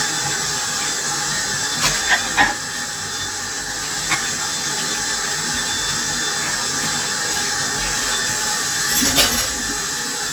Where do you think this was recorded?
in a kitchen